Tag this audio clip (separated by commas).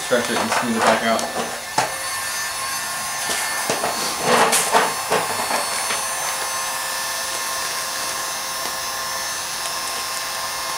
inside a large room or hall, Speech